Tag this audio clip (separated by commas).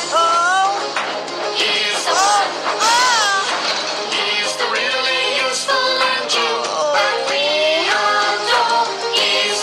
Music